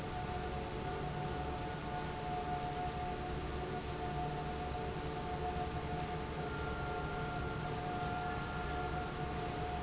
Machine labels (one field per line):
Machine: fan